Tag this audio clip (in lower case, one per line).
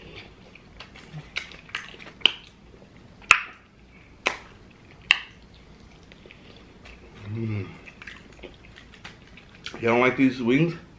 people slurping